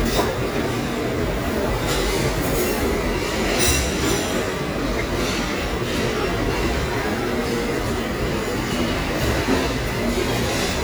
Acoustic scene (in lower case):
restaurant